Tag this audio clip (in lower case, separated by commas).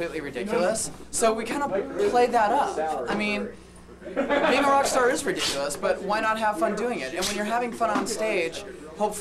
speech